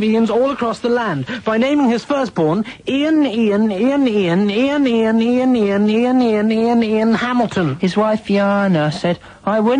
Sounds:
speech

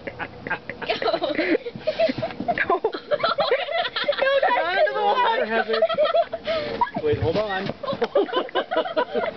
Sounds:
speech

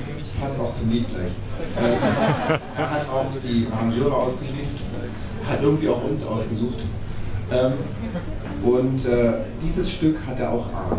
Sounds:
speech

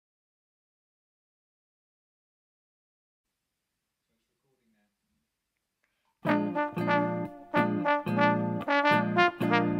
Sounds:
playing trombone

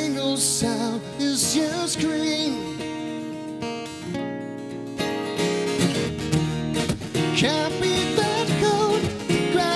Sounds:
music

